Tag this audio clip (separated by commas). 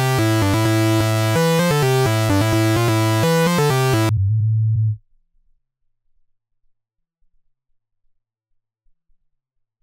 Sound effect, Music